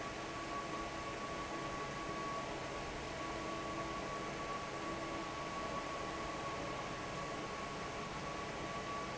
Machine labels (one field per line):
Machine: fan